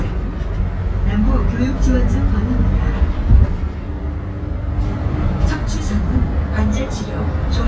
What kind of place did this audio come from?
bus